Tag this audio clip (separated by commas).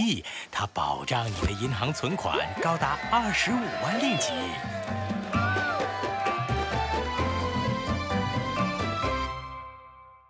Speech, Music